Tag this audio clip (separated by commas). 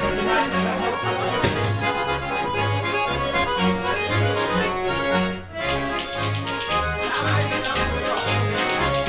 Speech, Music